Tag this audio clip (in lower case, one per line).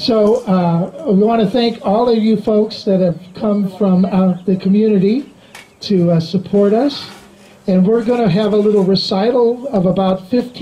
speech